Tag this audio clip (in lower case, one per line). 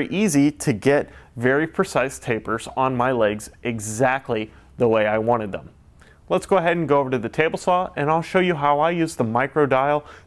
speech